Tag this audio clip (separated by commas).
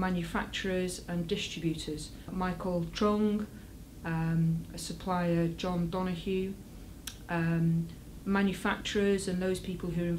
Speech